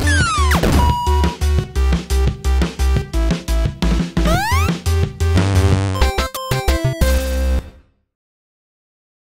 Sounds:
music

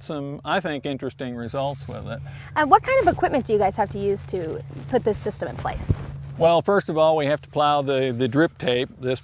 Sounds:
speech

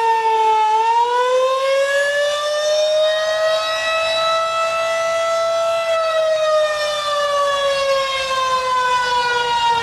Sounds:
siren, civil defense siren

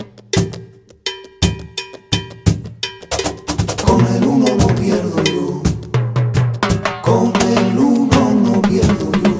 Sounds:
music, wood block, percussion

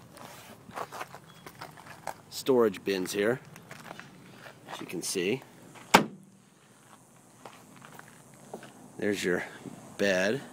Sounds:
speech

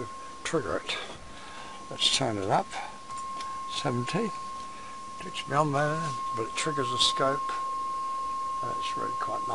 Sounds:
speech

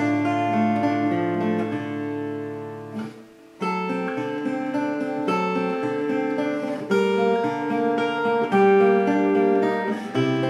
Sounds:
acoustic guitar, guitar, musical instrument, plucked string instrument, strum, music

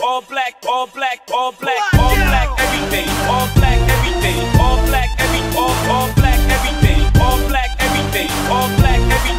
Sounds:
music

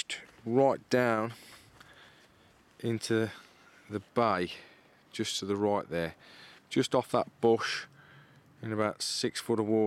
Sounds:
speech

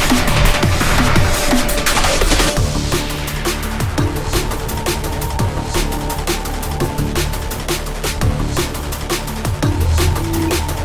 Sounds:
music, drum and bass

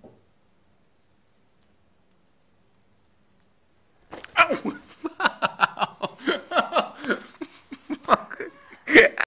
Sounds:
speech

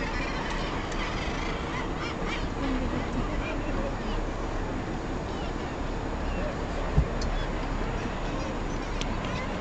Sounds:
speech

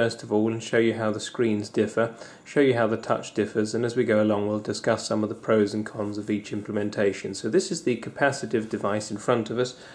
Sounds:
speech

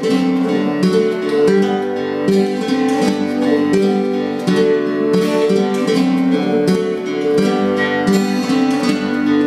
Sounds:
acoustic guitar, plucked string instrument, strum, music, musical instrument, guitar

